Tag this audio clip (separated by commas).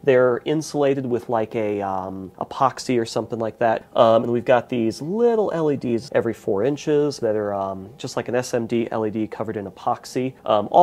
Speech